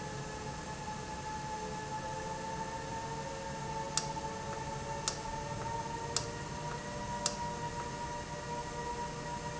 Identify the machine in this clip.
valve